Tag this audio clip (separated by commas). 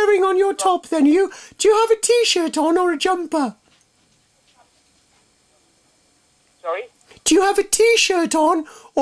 Speech